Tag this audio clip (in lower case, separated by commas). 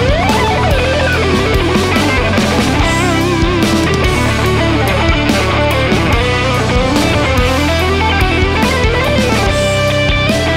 guitar, musical instrument, strum, plucked string instrument, music, electric guitar